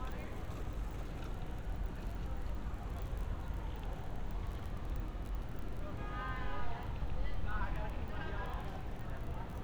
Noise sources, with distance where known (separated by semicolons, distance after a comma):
car horn; siren, far; person or small group talking, far